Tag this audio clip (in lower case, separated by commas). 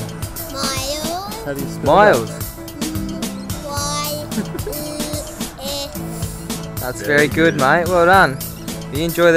music, speech